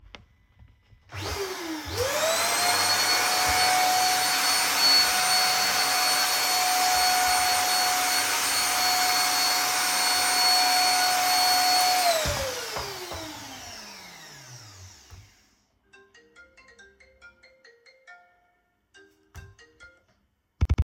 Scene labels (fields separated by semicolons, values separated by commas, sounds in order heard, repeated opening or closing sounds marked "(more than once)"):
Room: bedroom; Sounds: vacuum cleaner, phone ringing